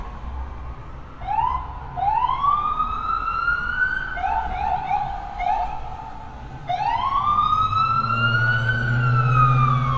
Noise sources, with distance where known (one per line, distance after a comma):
siren, near